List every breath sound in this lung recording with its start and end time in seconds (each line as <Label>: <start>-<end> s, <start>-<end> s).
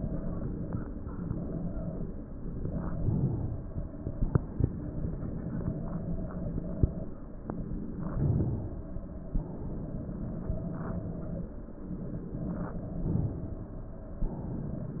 Inhalation: 2.90-4.08 s, 8.05-9.34 s, 12.98-14.26 s
Exhalation: 4.08-5.64 s, 9.34-10.73 s, 14.26-15.00 s